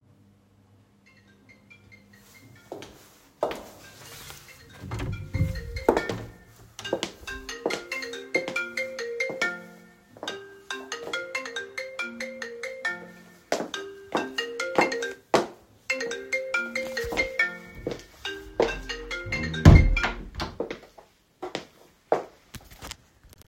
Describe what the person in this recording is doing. I was in the hallway when I heard my phone ringing in the office. I went to the office door opened it and stepped inside to the ringing phone. I let it ring and moved to the door to close it when the ringing stopped itself. Then I moved back to the phone.